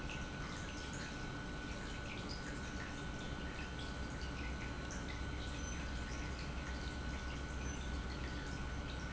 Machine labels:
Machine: pump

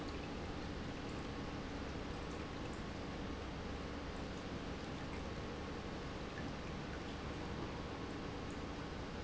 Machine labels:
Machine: pump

